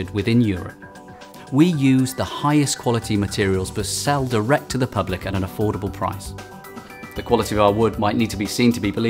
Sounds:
speech
music

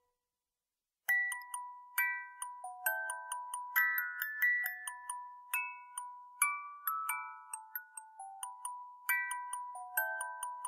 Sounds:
music

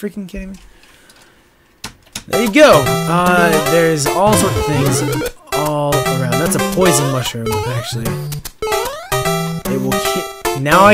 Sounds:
speech

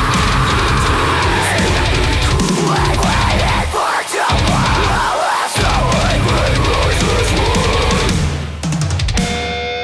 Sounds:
music

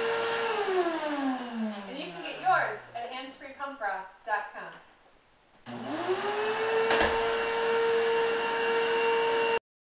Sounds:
speech

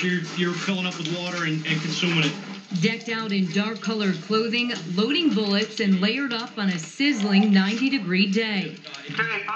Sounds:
speech

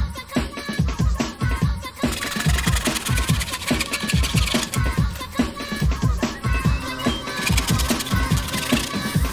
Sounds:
music
scratching (performance technique)

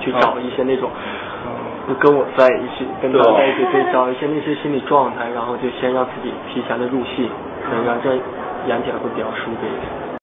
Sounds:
speech

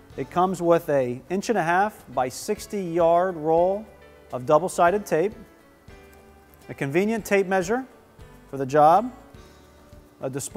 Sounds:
music
speech

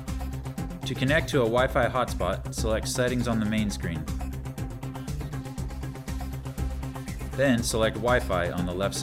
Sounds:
speech
music

